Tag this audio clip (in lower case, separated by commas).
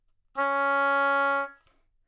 music, wind instrument, musical instrument